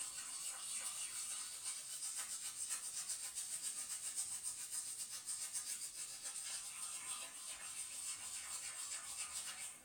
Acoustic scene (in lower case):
restroom